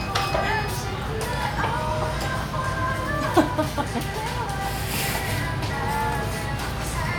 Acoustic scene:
restaurant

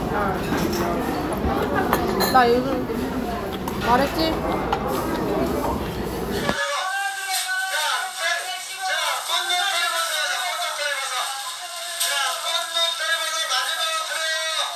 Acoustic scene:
crowded indoor space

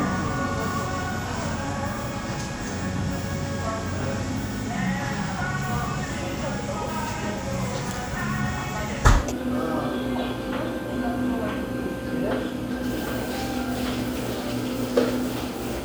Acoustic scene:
cafe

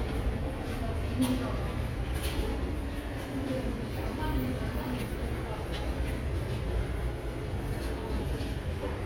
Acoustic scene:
subway station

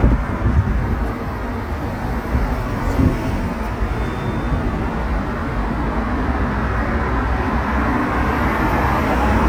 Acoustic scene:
street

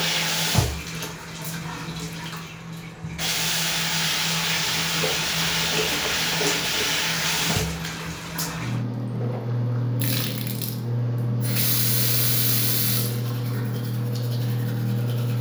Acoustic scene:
restroom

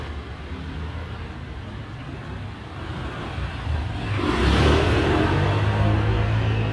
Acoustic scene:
residential area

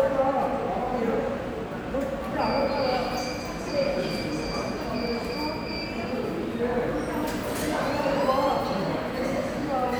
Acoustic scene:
subway station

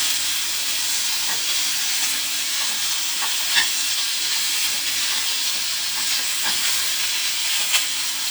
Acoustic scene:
kitchen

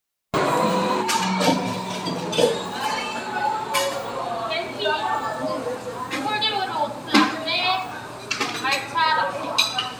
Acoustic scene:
cafe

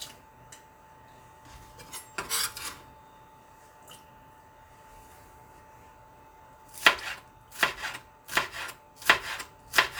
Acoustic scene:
kitchen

